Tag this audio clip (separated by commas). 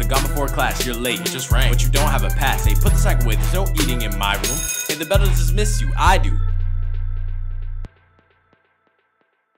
rapping